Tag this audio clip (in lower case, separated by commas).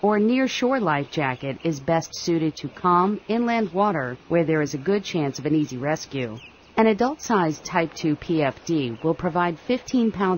speech